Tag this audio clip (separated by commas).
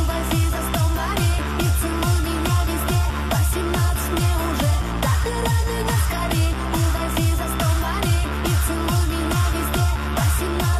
Music